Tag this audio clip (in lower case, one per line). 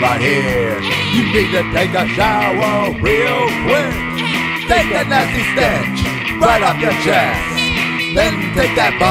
music